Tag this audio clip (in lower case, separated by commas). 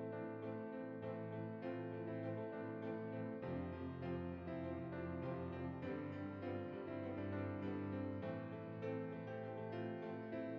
harpsichord, music